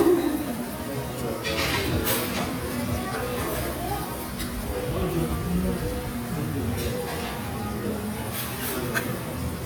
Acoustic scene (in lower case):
restaurant